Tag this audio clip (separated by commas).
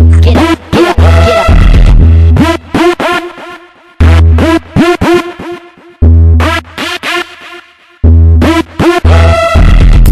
Electronic music, Music, Techno